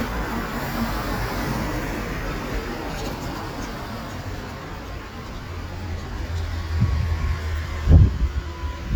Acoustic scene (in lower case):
street